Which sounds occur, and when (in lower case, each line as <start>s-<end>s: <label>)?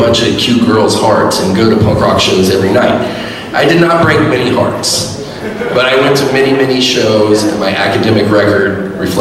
0.0s-2.9s: male speech
0.0s-9.2s: background noise
2.9s-3.5s: breathing
3.5s-8.7s: male speech